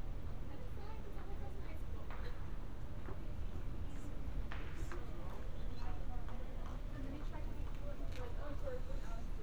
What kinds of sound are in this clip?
person or small group talking